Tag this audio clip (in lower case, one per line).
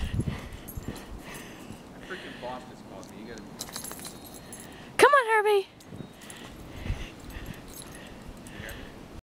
speech